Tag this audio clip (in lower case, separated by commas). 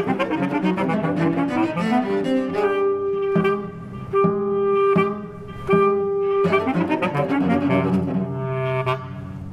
musical instrument, jazz, double bass, bowed string instrument, music, classical music, cello